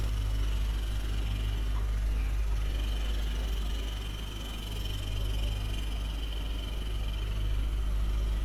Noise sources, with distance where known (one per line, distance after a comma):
jackhammer